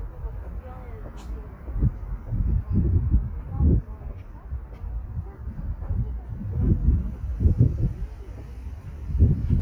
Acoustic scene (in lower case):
park